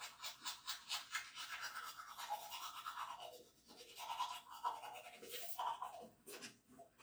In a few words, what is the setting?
restroom